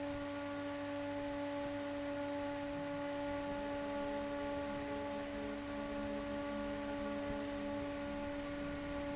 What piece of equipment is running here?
fan